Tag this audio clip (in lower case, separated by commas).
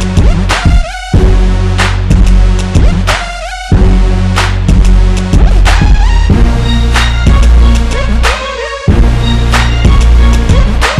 music, exciting music